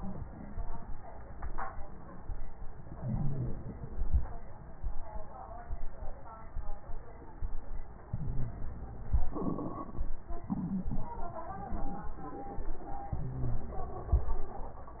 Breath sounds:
2.90-3.69 s: inhalation
3.69-4.23 s: exhalation
8.10-9.17 s: inhalation
8.10-9.17 s: crackles
9.23-10.05 s: exhalation
9.23-10.05 s: crackles
13.13-14.16 s: inhalation
13.13-14.16 s: crackles
14.19-15.00 s: exhalation
14.19-15.00 s: crackles

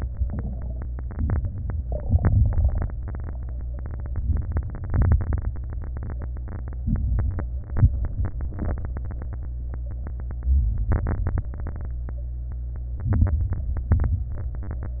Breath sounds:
1.03-1.82 s: inhalation
1.03-1.82 s: crackles
2.03-2.82 s: exhalation
2.03-2.82 s: crackles
4.00-4.79 s: inhalation
4.00-4.79 s: crackles
4.88-5.51 s: exhalation
4.88-5.51 s: crackles
6.84-7.47 s: inhalation
6.84-7.47 s: crackles
7.75-8.38 s: exhalation
7.75-8.38 s: crackles
10.52-11.40 s: inhalation
10.52-11.40 s: crackles
11.48-11.99 s: exhalation
11.48-11.99 s: crackles
12.99-13.50 s: inhalation
12.99-13.50 s: crackles
13.71-14.31 s: exhalation
13.71-14.31 s: crackles

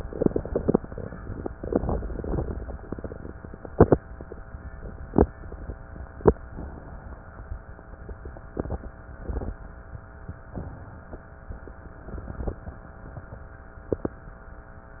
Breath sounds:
6.45-7.64 s: inhalation
10.46-11.45 s: inhalation

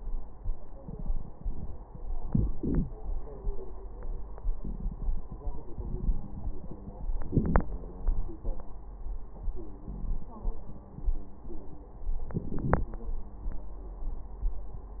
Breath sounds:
2.23-2.93 s: inhalation
7.27-7.71 s: inhalation
7.67-8.35 s: wheeze
12.34-12.93 s: inhalation

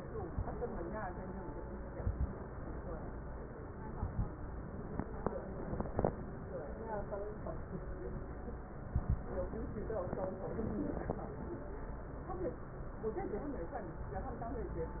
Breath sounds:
1.88-2.43 s: inhalation
1.88-2.43 s: crackles
3.74-4.30 s: inhalation
3.74-4.30 s: crackles
8.75-9.30 s: inhalation
8.75-9.30 s: crackles

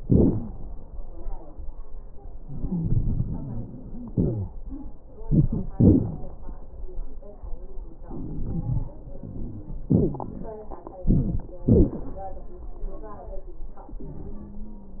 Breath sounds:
0.00-0.50 s: exhalation
0.00-0.50 s: crackles
2.41-4.09 s: inhalation
2.41-4.09 s: wheeze
4.12-4.50 s: exhalation
4.12-4.50 s: wheeze
5.10-5.72 s: inhalation
5.10-5.72 s: crackles
5.75-6.30 s: exhalation
5.75-6.30 s: crackles
8.09-8.89 s: inhalation
8.09-8.89 s: crackles
9.91-10.58 s: exhalation
9.91-10.58 s: wheeze
11.03-11.50 s: inhalation
11.03-11.50 s: crackles
11.64-12.12 s: exhalation
11.64-12.12 s: wheeze
14.17-15.00 s: wheeze

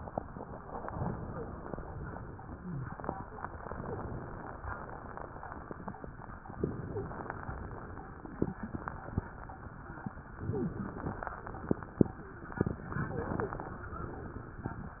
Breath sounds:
0.80-1.82 s: inhalation
1.22-1.54 s: wheeze
3.61-4.63 s: inhalation
3.76-4.08 s: wheeze
6.62-7.65 s: inhalation
6.87-7.19 s: wheeze
10.34-11.37 s: inhalation
10.51-10.84 s: wheeze
12.92-13.95 s: inhalation
13.11-13.61 s: wheeze

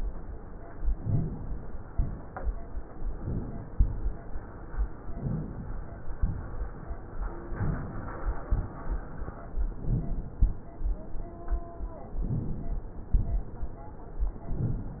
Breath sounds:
0.87-1.76 s: inhalation
3.12-3.82 s: inhalation
5.05-5.95 s: inhalation
6.19-6.89 s: exhalation
9.67-10.37 s: inhalation
10.41-11.11 s: exhalation
12.20-12.99 s: inhalation
13.15-13.85 s: exhalation

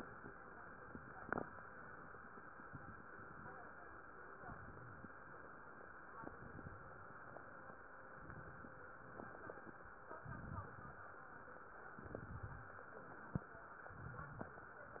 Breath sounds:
2.64-3.53 s: inhalation
4.31-5.20 s: inhalation
6.17-7.06 s: inhalation
8.09-8.98 s: inhalation
10.22-11.11 s: inhalation
11.93-12.82 s: inhalation
13.89-14.78 s: inhalation

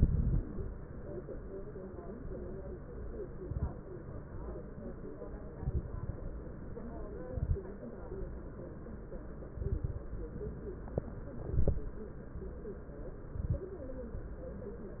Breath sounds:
0.00-0.47 s: exhalation
0.00-0.47 s: crackles
3.40-3.74 s: exhalation
3.40-3.74 s: crackles
5.57-6.13 s: exhalation
5.57-6.13 s: crackles
7.26-7.66 s: exhalation
7.26-7.66 s: crackles
9.60-9.99 s: exhalation
9.60-9.99 s: crackles
11.46-11.86 s: exhalation
11.46-11.86 s: crackles
13.32-13.72 s: exhalation
13.32-13.72 s: crackles

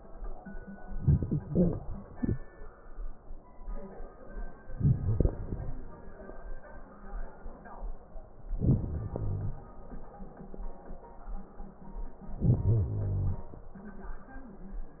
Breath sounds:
0.85-2.45 s: inhalation
0.85-2.45 s: crackles
4.67-6.00 s: inhalation
4.67-6.00 s: crackles
8.52-9.65 s: inhalation
8.52-9.65 s: crackles
12.36-13.70 s: inhalation

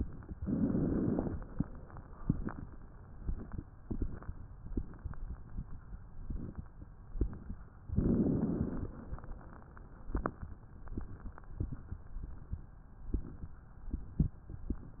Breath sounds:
0.40-1.31 s: inhalation
7.91-8.87 s: inhalation

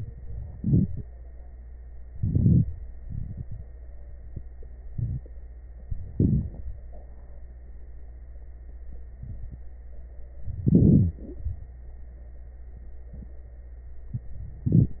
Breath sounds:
0.53-1.05 s: inhalation
2.14-2.66 s: inhalation
2.14-2.66 s: crackles
3.06-3.64 s: exhalation
6.14-6.64 s: inhalation
6.14-6.64 s: crackles
10.66-11.16 s: inhalation
10.66-11.16 s: wheeze
14.64-15.00 s: inhalation
14.64-15.00 s: crackles

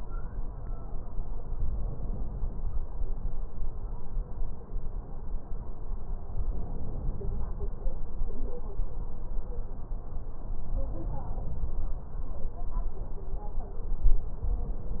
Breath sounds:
1.53-2.89 s: inhalation
6.32-7.52 s: inhalation
10.54-11.75 s: inhalation

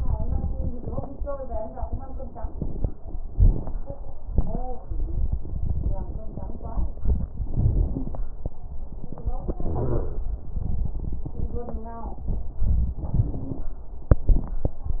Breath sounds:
9.66-10.21 s: wheeze

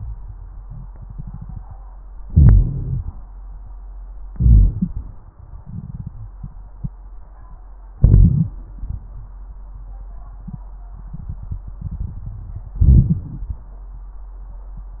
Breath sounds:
2.25-3.20 s: inhalation
2.25-3.20 s: crackles
4.27-5.22 s: exhalation
4.27-5.22 s: crackles
7.90-8.76 s: inhalation
7.90-8.76 s: crackles
12.76-13.62 s: inhalation
12.76-13.62 s: crackles

